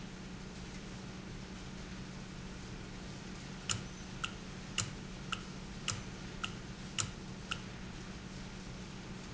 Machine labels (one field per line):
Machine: valve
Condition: normal